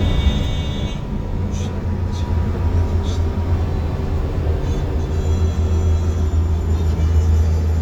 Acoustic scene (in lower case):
bus